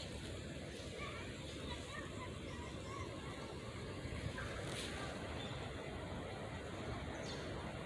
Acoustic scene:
residential area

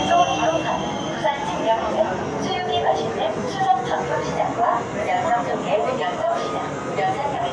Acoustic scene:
subway train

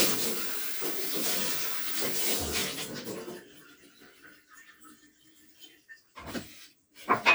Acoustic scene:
kitchen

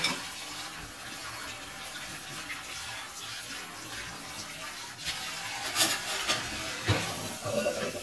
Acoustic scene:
kitchen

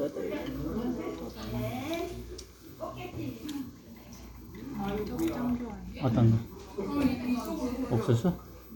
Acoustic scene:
restaurant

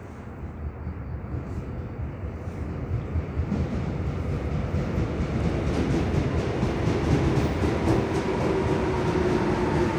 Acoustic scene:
subway station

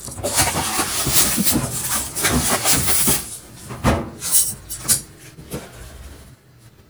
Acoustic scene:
kitchen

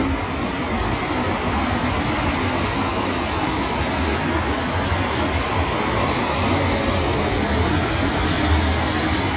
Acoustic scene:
street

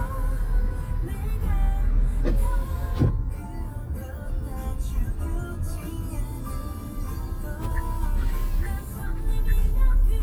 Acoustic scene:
car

